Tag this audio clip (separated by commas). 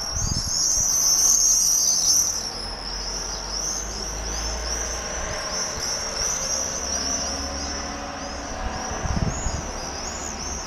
barn swallow calling